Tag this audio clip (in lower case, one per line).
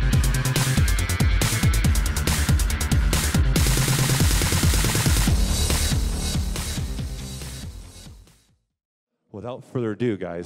music